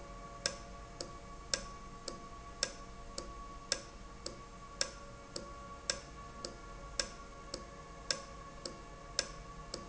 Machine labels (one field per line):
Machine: valve